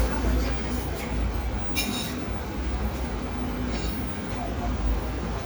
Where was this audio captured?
in a cafe